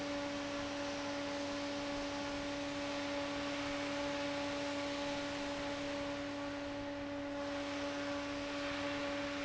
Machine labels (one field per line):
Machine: fan